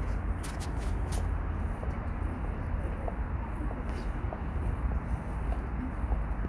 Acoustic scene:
residential area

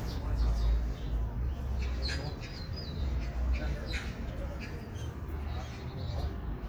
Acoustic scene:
park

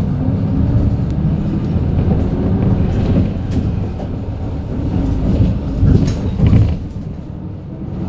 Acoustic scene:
bus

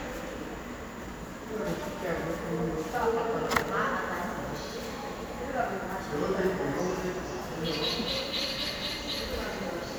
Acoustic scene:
subway station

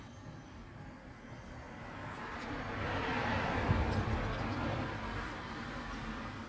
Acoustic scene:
street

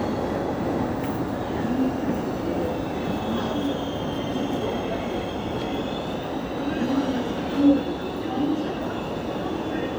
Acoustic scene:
subway station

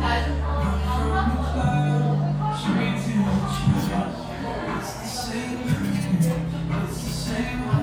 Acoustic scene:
cafe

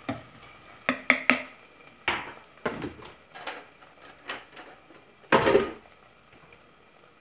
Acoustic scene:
kitchen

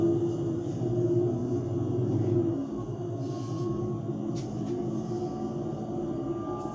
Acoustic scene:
bus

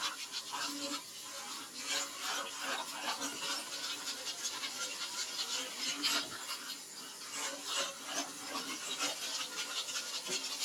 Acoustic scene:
kitchen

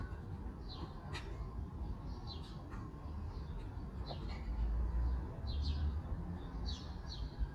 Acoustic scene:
park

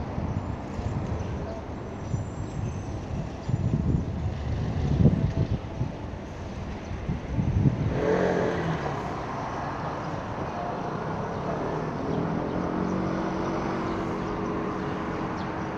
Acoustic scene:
street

